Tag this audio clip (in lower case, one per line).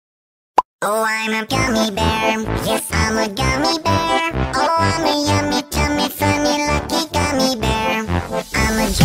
singing
music